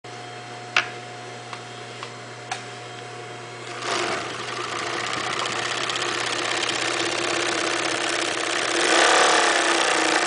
White noise and rustling followed by an engine starting